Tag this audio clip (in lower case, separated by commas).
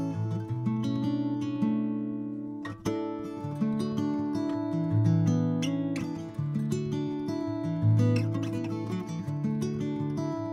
musical instrument, acoustic guitar, plucked string instrument, music, guitar, strum